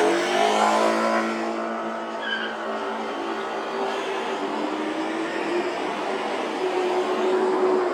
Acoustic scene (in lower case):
street